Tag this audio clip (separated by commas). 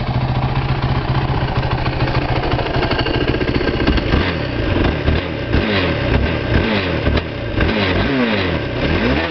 Vehicle, revving